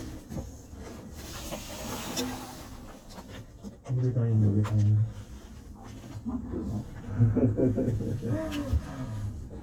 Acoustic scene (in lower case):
elevator